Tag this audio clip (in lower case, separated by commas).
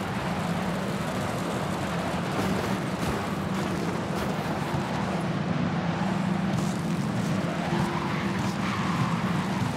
inside a large room or hall